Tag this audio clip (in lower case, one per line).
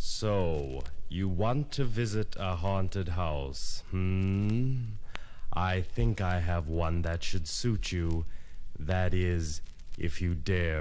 speech